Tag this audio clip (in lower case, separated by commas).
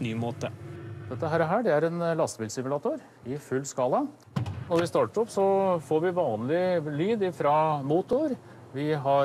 speech